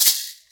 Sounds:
Musical instrument, Rattle (instrument), Percussion, Music

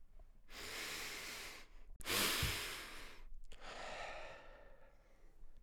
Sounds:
Breathing, Respiratory sounds

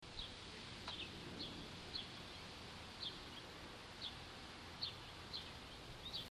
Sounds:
Wild animals, Bird, Animal

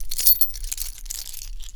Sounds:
home sounds, Keys jangling

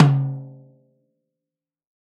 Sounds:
Music, Snare drum, Musical instrument, Drum, Percussion

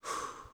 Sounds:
Respiratory sounds, Breathing

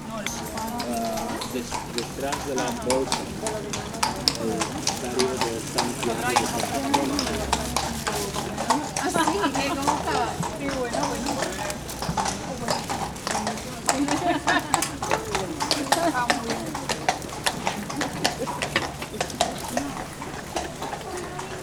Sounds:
livestock, Animal

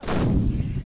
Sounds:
Boom, Explosion

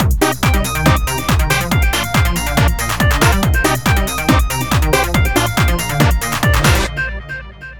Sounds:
Drum kit, Music, Musical instrument, Percussion

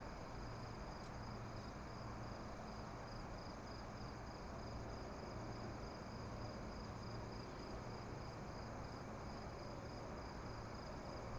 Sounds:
Insect, Cricket, Animal, Wild animals

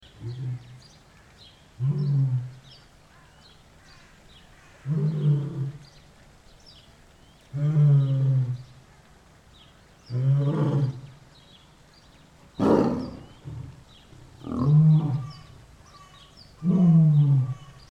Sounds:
Animal, Wild animals

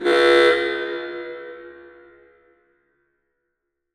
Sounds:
Alarm

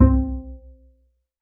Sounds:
Music, Bowed string instrument, Musical instrument

